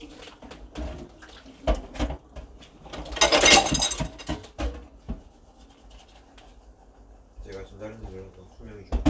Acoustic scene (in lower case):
kitchen